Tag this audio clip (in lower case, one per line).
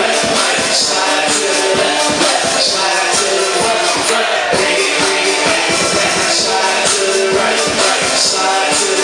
music
dance music